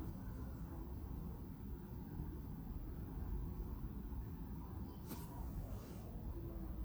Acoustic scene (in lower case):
residential area